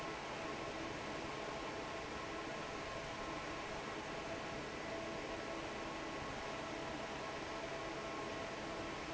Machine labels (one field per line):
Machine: fan